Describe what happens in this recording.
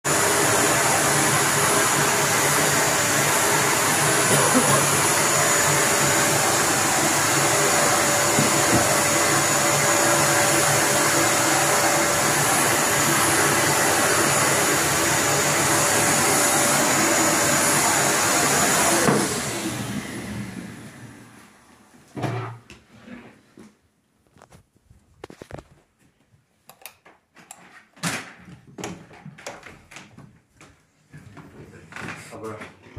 I am vacuuming the living room and as I finish, I turn it off. I then walk towards the my bedroom to check on if I shall vacuum it too.